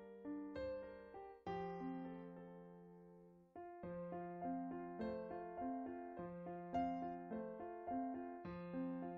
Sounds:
Music

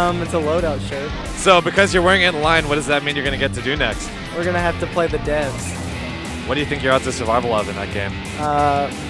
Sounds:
Music, Speech

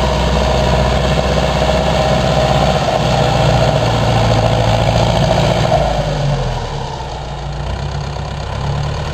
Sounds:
Vehicle, vroom, Heavy engine (low frequency)

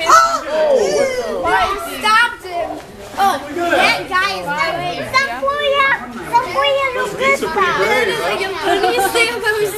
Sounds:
Speech

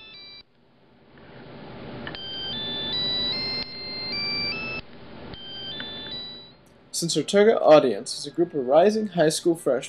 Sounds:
Speech

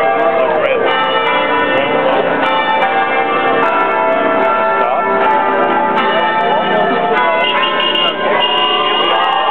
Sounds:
Speech, Music, Crowd

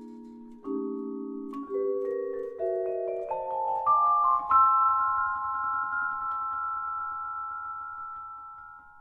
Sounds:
Vibraphone, Musical instrument, Music, playing vibraphone

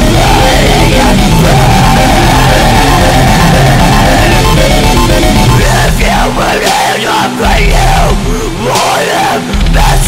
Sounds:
Music

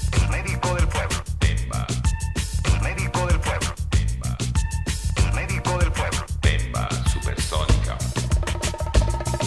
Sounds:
Speech, Music

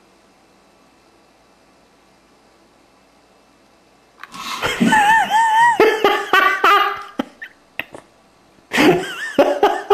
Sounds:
Car

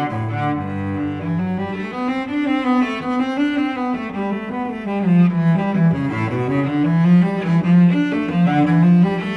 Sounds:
Music, Cello, Musical instrument

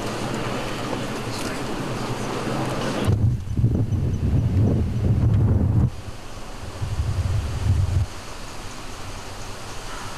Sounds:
outside, rural or natural

